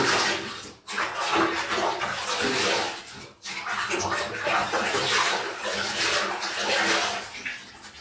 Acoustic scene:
restroom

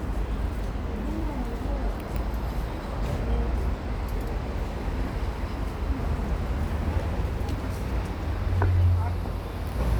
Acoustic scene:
street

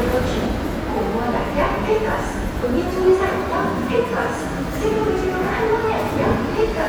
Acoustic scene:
subway station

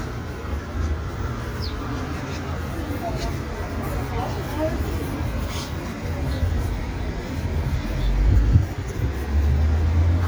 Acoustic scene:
street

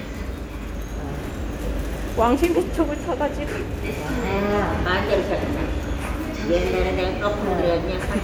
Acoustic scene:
subway station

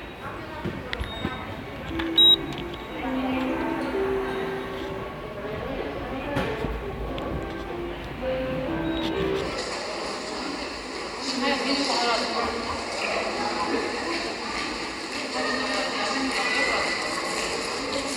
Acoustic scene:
subway station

